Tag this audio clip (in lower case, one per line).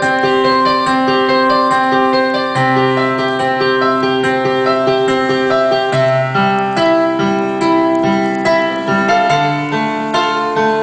music
soundtrack music